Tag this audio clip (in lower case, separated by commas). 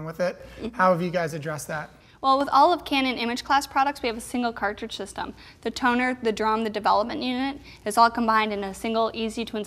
speech